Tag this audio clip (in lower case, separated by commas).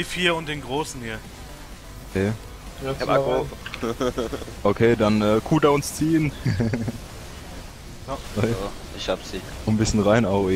speech